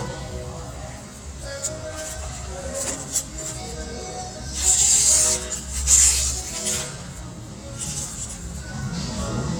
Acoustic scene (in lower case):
restaurant